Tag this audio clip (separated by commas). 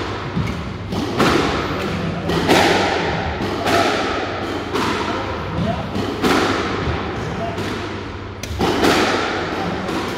playing squash